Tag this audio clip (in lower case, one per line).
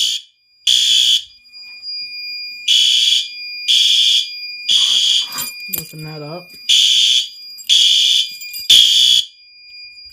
speech
fire alarm